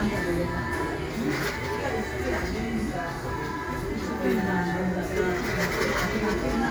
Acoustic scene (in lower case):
cafe